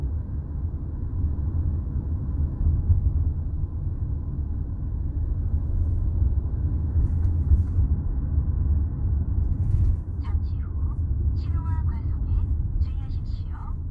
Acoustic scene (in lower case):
car